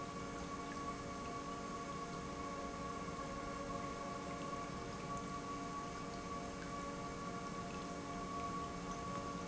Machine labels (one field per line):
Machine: pump